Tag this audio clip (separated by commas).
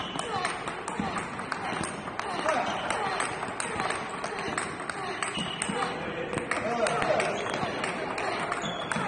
playing table tennis